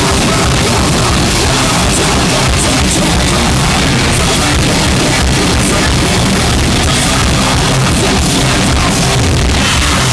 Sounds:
Music

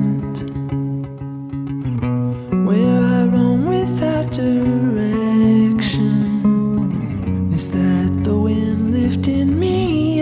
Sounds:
Music

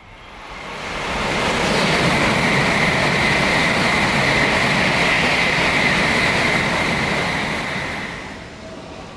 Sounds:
Train, train wagon, Rail transport, metro

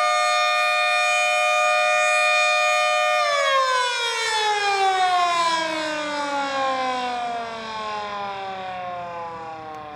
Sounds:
Siren, Civil defense siren

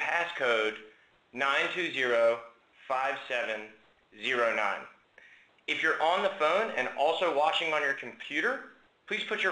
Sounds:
Speech

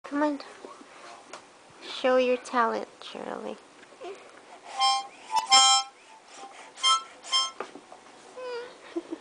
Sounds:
playing harmonica

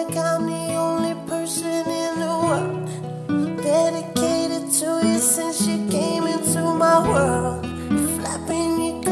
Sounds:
Independent music, Music

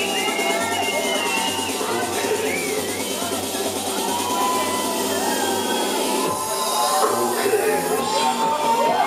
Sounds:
Speech, Music

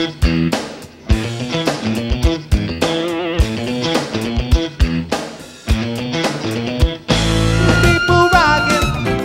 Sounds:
Dance music, Happy music, Music

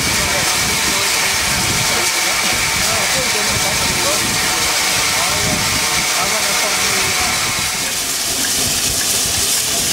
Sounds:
Rail transport, Vehicle, Train, Speech

